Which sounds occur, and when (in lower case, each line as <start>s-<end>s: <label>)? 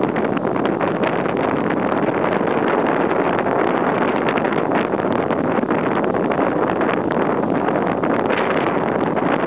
0.0s-9.4s: boat
0.0s-9.4s: wind noise (microphone)